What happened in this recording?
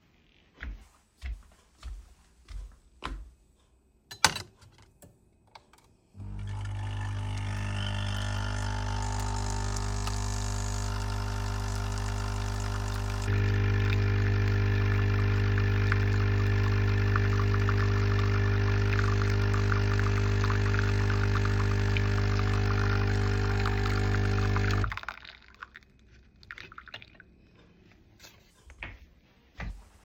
I walked towards the coffee machine. I pressed the button to make coffee and waited.